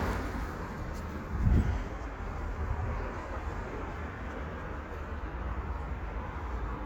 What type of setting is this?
residential area